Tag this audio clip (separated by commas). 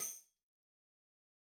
Tambourine, Percussion, Music, Musical instrument